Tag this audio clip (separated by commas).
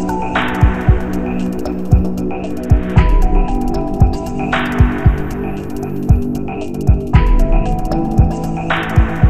Music